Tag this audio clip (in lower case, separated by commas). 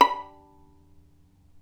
music, bowed string instrument, musical instrument